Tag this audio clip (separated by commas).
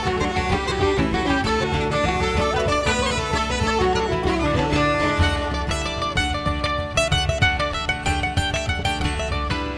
Music